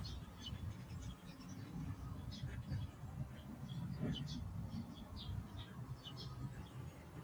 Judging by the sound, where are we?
in a park